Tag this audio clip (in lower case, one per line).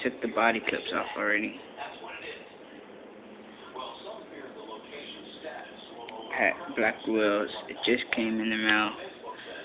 speech